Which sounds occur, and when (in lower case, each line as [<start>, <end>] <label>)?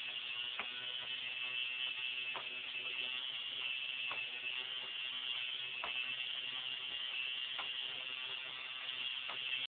[0.00, 9.65] mechanisms
[0.56, 0.64] tick
[2.30, 2.43] tick
[4.05, 4.16] tick
[5.79, 5.91] tick
[7.53, 7.64] tick
[9.25, 9.34] tick